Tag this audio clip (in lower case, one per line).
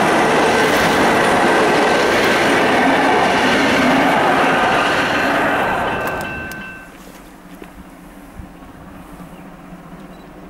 train
train wagon
rail transport